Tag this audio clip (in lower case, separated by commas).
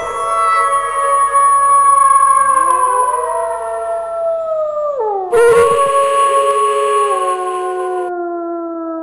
canids, animal